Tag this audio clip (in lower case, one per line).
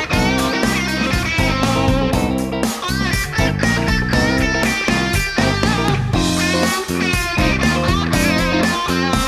bass guitar
musical instrument
music
strum
plucked string instrument
guitar